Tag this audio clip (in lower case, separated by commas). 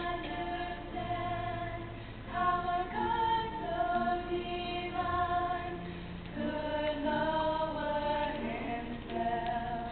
choir, music, female singing